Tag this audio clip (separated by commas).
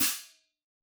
Musical instrument, Hi-hat, Music, Cymbal, Percussion